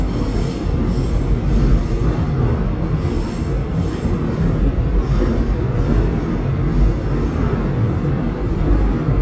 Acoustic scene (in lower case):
subway train